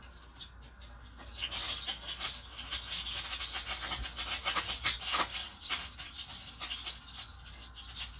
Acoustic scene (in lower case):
kitchen